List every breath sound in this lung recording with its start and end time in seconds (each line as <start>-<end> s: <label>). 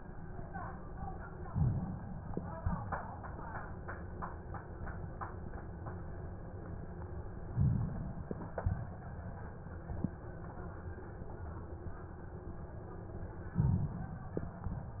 1.50-2.58 s: inhalation
7.51-8.60 s: inhalation
13.47-14.40 s: inhalation